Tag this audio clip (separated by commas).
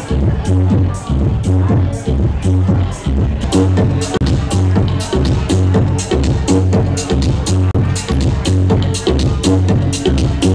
Music, Speech, House music, Exciting music